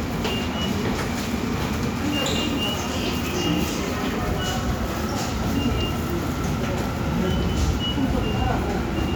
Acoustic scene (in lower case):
subway station